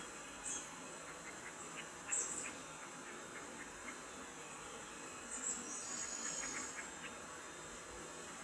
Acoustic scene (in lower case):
park